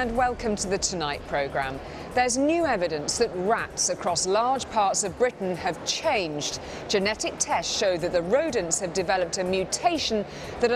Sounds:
music
speech

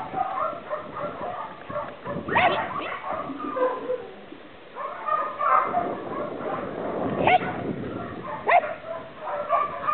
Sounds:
dog
animal
pets

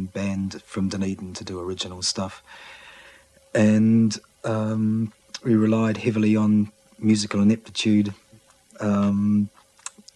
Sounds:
speech

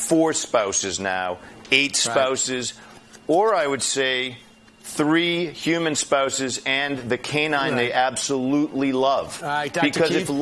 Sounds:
speech

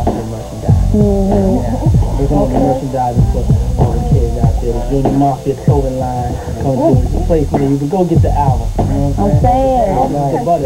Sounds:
speech
music

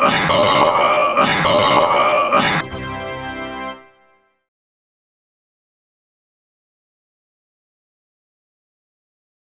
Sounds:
music

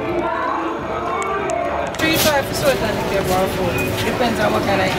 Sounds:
speech

